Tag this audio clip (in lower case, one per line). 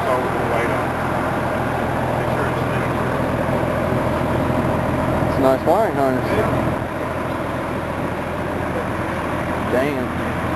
speech
motor vehicle (road)
vehicle